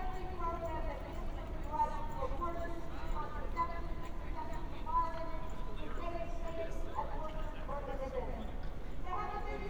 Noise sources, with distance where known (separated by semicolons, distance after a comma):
amplified speech, far